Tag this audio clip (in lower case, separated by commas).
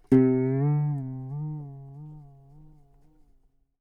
music, plucked string instrument, guitar, musical instrument